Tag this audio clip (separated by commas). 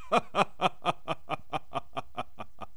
Human voice, Laughter